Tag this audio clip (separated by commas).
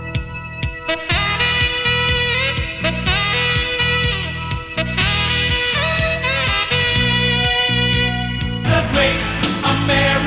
Music